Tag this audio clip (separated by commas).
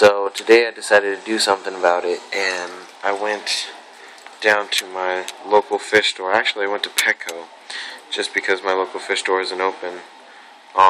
Speech